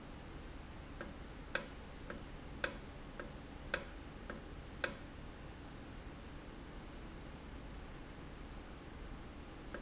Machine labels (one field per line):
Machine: valve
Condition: normal